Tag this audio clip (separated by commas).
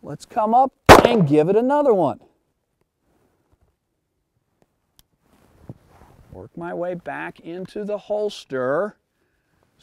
Speech, outside, rural or natural